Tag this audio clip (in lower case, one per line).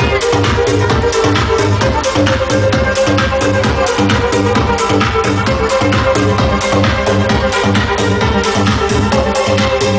music